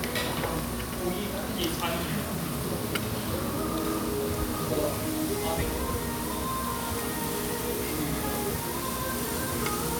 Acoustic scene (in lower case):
restaurant